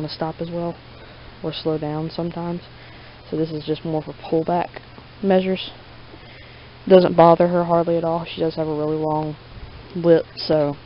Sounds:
Speech

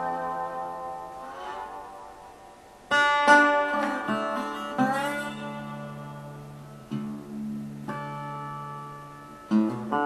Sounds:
Music, Plucked string instrument, Guitar, Acoustic guitar, Musical instrument

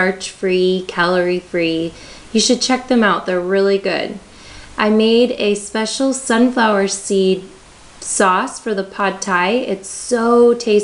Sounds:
Speech

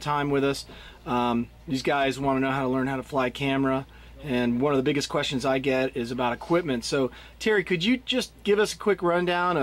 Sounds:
Speech

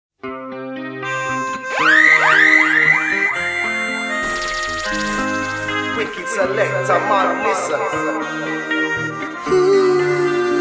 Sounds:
Music, Speech

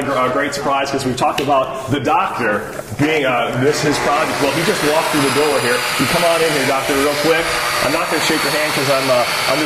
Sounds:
Power tool, Tools

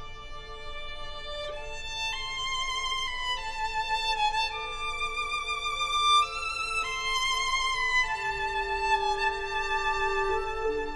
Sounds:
Musical instrument, fiddle, Music

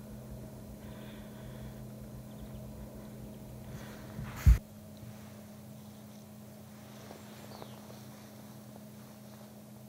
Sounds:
Bird

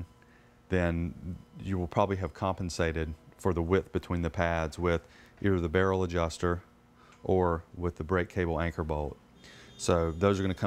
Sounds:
Speech

